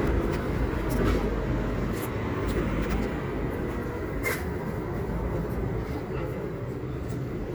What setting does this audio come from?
residential area